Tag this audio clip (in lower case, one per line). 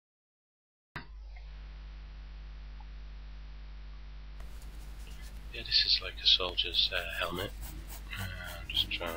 speech